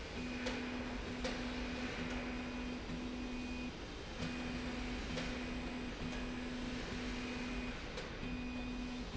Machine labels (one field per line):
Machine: slide rail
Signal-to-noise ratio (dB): 0 dB